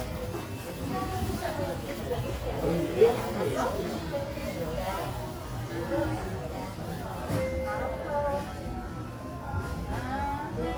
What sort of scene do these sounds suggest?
crowded indoor space